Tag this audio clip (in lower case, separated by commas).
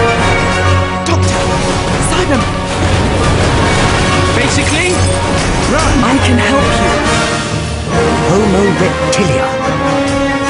music, speech